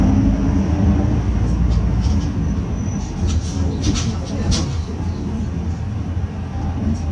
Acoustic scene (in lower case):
bus